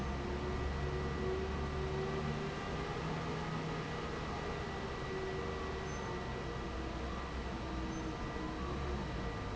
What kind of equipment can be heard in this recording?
fan